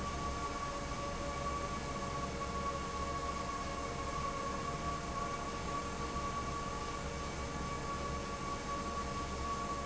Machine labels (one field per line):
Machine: fan